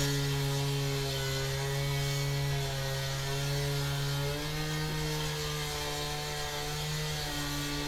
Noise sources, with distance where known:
small or medium rotating saw, near

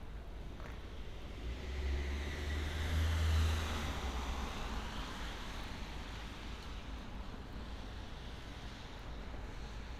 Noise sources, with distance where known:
engine of unclear size

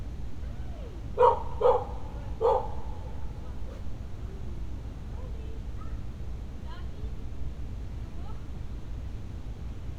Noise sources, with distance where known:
dog barking or whining, near

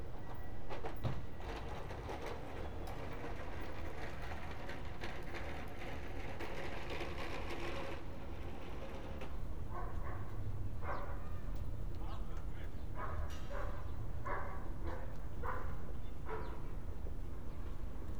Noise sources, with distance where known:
background noise

